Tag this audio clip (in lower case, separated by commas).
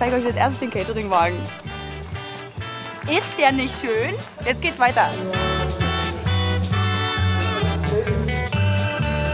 music, speech